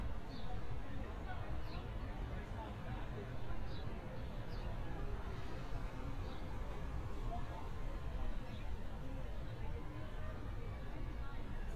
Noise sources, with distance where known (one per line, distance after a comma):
person or small group talking, far